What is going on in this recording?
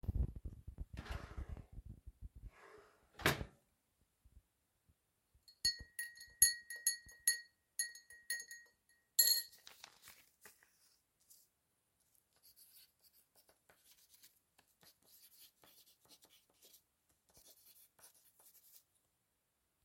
I was in the kitchen preparing tea, so I opened the kitchen drawers to get a spoon and began stirring the tea, after I was done I took a paper and a pen and started taking a quick note.